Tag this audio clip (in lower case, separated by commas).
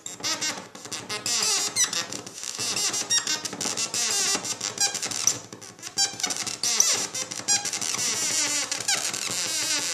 musical instrument, synthesizer